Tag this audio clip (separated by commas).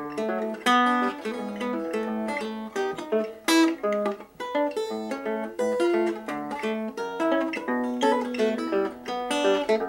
Music